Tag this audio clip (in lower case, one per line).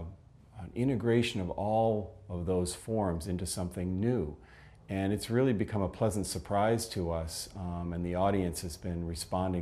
speech